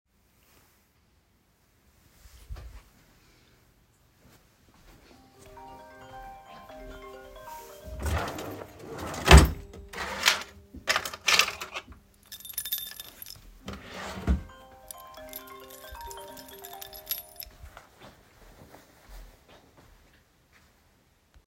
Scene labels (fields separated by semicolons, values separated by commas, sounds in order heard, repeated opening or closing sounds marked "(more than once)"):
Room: bedroom; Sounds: phone ringing, wardrobe or drawer (more than once), keys